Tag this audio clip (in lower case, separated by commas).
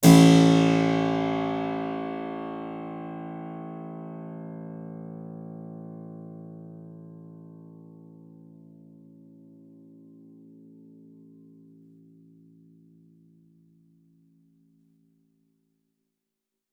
music, musical instrument, keyboard (musical)